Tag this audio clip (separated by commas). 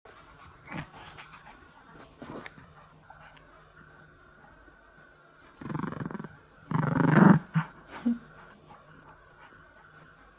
lions growling